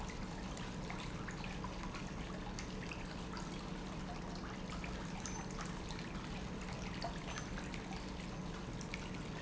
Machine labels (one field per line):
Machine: pump